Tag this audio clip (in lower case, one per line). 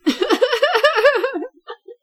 human voice
chuckle
laughter